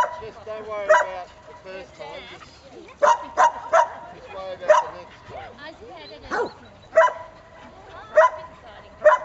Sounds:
Dog, Domestic animals, Speech, Animal

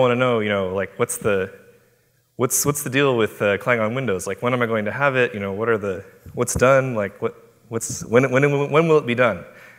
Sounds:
Speech

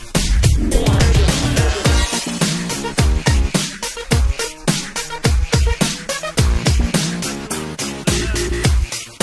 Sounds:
Music, Dance music

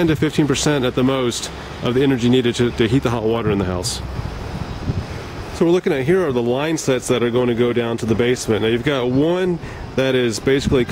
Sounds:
Speech

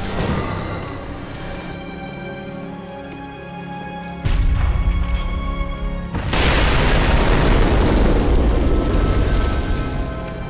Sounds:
Music, Boom

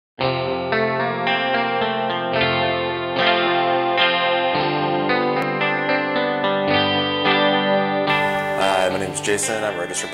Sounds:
Speech, Music, Distortion

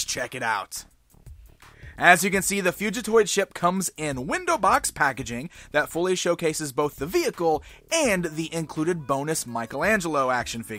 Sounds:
Speech, Music

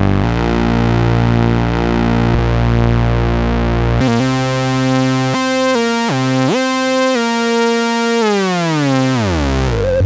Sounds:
playing synthesizer

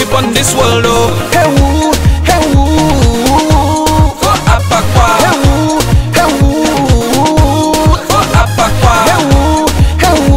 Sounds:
Funk, Music

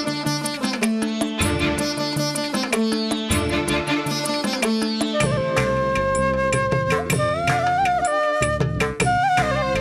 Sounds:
Percussion, Tabla

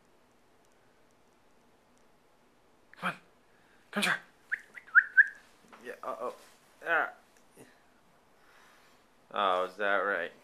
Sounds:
Speech

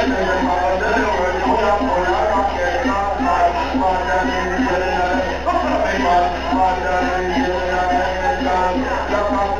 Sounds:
Music

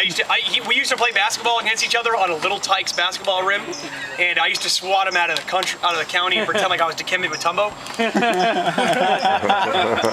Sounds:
Speech, man speaking

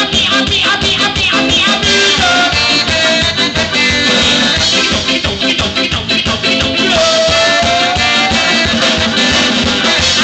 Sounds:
Ska, Drum kit, Music, Singing

